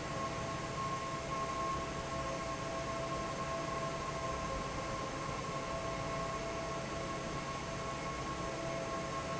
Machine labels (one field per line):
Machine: fan